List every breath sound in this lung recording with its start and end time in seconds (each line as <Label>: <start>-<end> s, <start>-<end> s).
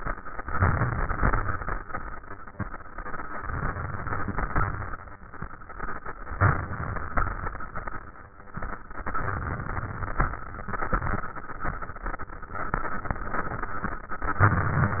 Inhalation: 0.44-1.40 s, 3.40-4.46 s, 6.37-7.14 s, 8.93-10.25 s, 14.40-15.00 s
Exhalation: 4.47-5.07 s, 7.13-7.90 s, 10.30-11.27 s
Crackles: 0.44-1.40 s, 4.47-5.07 s, 10.30-11.27 s